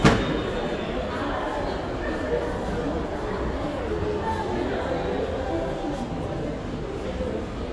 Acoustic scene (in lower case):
crowded indoor space